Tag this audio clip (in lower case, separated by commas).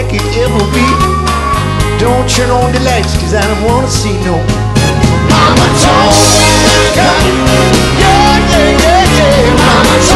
music